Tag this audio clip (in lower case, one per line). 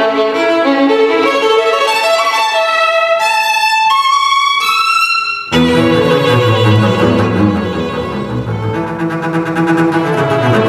cello
double bass
bowed string instrument
fiddle